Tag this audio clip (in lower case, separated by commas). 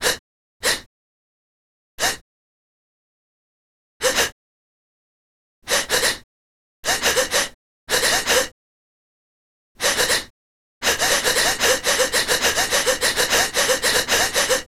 breathing, respiratory sounds